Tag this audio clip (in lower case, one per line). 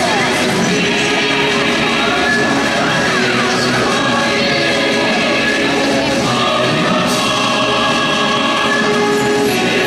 music
speech